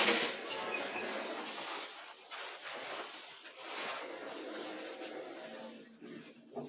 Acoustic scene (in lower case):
elevator